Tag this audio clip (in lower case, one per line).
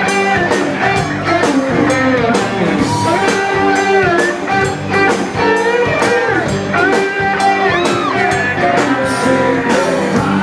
music